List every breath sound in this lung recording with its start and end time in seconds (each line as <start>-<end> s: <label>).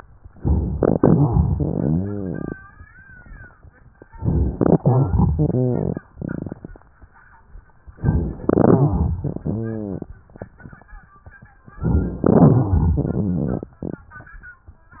0.34-1.48 s: inhalation
0.34-1.48 s: crackles
1.52-2.56 s: exhalation
1.52-2.56 s: rhonchi
3.93-4.80 s: inhalation
3.93-4.80 s: crackles
4.80-6.05 s: exhalation
4.80-6.05 s: rhonchi
7.97-8.75 s: inhalation
7.97-8.75 s: crackles
8.75-10.13 s: exhalation
8.75-10.13 s: rhonchi
11.73-12.26 s: crackles
12.28-13.76 s: exhalation